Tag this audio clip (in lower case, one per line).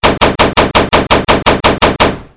gunfire
explosion